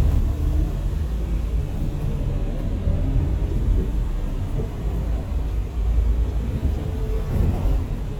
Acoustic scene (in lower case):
bus